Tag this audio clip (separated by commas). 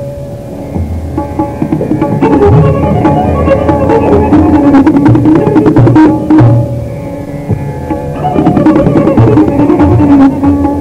Tabla, Percussion, Drum